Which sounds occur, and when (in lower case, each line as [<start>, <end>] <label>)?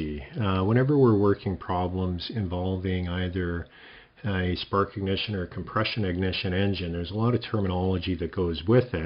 [0.00, 3.63] male speech
[0.00, 9.05] background noise
[0.27, 0.59] generic impact sounds
[3.64, 4.07] breathing
[4.12, 9.05] male speech